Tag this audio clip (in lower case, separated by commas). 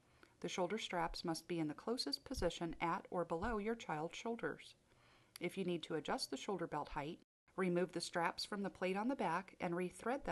speech